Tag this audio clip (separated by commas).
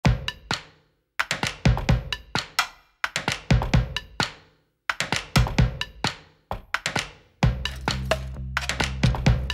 Wood block, Snare drum, Drum, Percussion